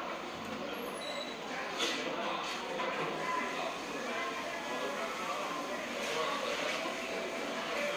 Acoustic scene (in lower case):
cafe